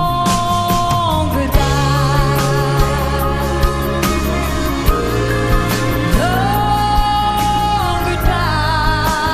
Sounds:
music, singing, inside a large room or hall

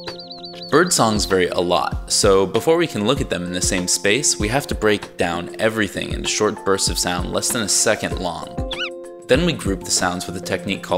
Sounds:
music, bird call, speech

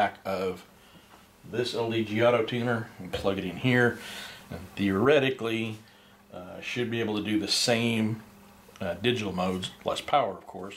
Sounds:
inside a small room, speech

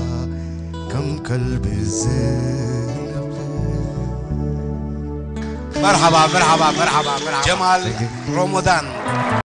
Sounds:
music, speech

